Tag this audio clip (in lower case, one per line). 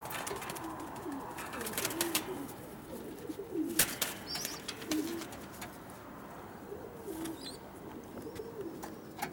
bird
domestic animals
dove